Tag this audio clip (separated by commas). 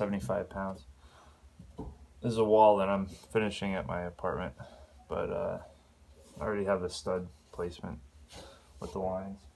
Speech